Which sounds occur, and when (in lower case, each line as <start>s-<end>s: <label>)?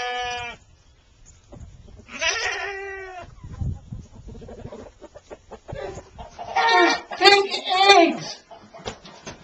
0.0s-0.5s: chicken
0.0s-6.3s: wind
0.2s-0.5s: wind noise (microphone)
0.7s-1.5s: bird song
1.5s-7.2s: chicken
3.3s-4.5s: wind noise (microphone)
3.9s-4.1s: surface contact
4.7s-4.8s: surface contact
5.2s-5.4s: surface contact
5.7s-6.2s: wind noise (microphone)
6.3s-9.4s: background noise
7.2s-8.4s: man speaking
8.1s-8.8s: chicken
8.8s-9.4s: generic impact sounds